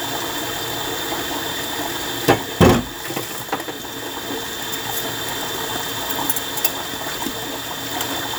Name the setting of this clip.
kitchen